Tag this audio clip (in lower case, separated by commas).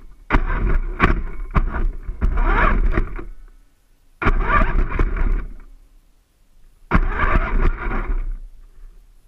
vehicle